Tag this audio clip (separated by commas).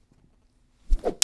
swish